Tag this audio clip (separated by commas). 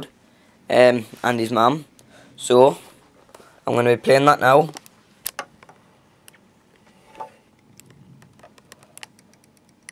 Speech